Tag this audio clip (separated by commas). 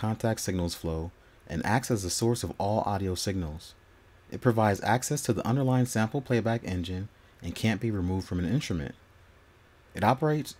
Speech